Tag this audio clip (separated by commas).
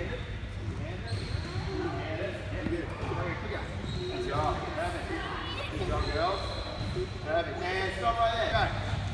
basketball bounce